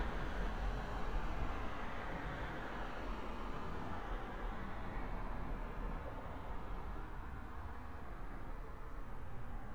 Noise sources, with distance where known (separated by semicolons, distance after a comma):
background noise